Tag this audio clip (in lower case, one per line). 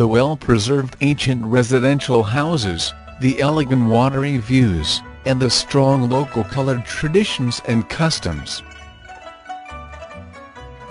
speech